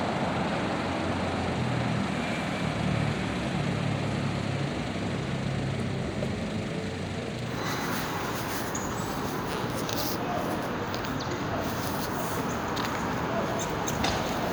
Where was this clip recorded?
on a street